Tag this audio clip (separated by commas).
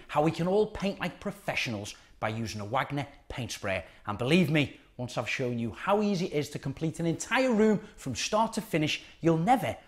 Speech